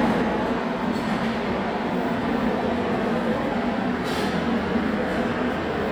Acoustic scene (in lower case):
subway station